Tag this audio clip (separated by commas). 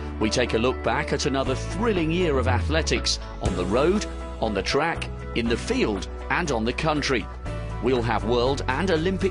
Speech, Music